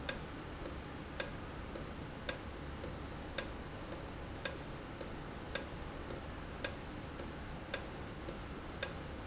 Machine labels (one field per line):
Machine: valve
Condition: normal